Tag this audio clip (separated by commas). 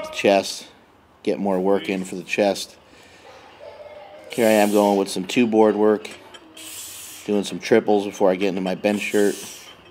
Speech